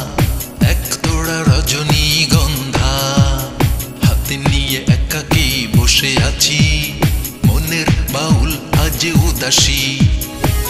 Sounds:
music

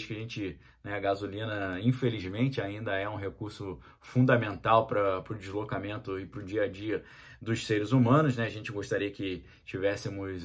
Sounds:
striking pool

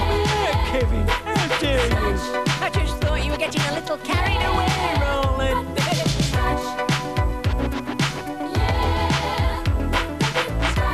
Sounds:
rapping

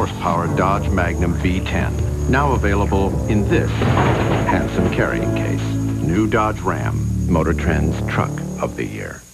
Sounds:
speech, music

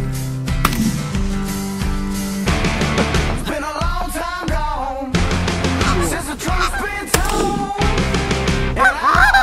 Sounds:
honk, fowl, goose

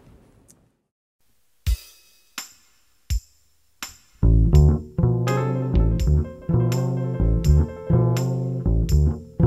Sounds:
music, bowed string instrument, cello, double bass, musical instrument

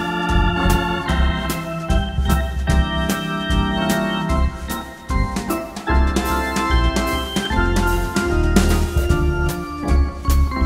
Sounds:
playing hammond organ

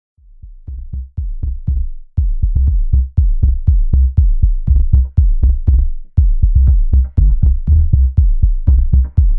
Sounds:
drum machine

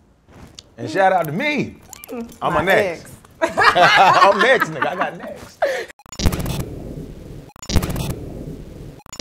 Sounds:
speech

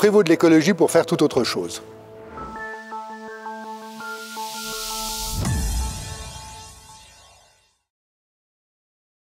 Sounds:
speech, music

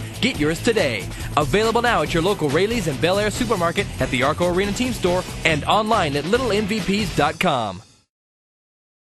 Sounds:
music, speech

